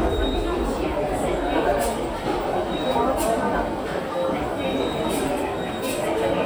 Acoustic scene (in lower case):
subway station